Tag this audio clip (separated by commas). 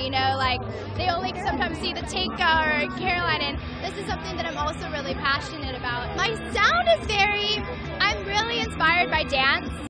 Speech, Music